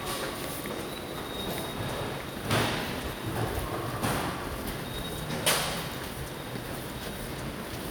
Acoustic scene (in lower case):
subway station